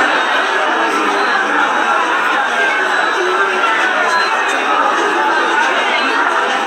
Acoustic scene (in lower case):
subway station